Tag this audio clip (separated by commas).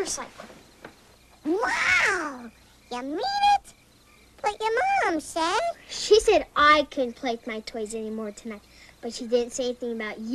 Speech